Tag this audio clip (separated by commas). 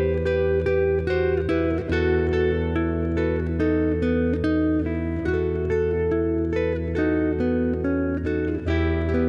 Guitar, Plucked string instrument, Music, Musical instrument, Acoustic guitar, Strum